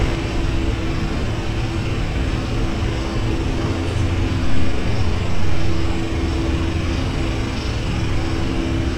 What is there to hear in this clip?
unidentified impact machinery